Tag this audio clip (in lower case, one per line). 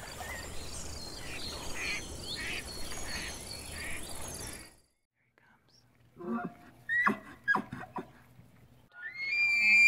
elk bugling